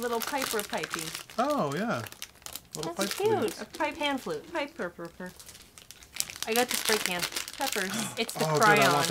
A man and woman speak over crinkling